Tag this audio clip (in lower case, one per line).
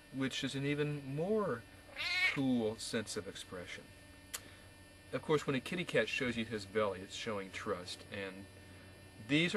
cat
domestic animals
speech
animal